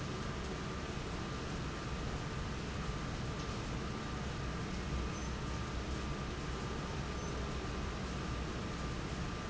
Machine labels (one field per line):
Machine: fan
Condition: abnormal